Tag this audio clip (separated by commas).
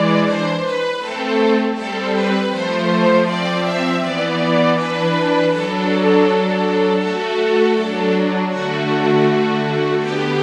Music, Sad music